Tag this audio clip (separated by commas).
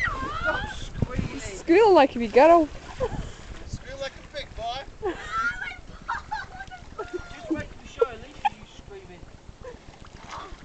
Speech